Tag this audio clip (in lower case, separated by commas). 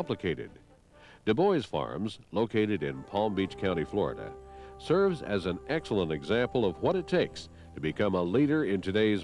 music, speech